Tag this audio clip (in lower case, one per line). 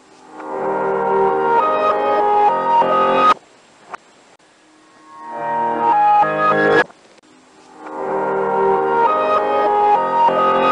music
swish